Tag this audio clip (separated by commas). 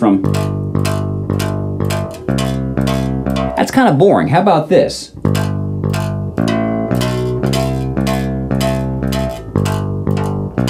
Bass guitar, Music, Speech